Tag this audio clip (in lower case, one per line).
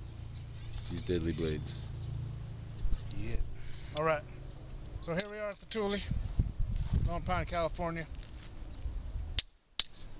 speech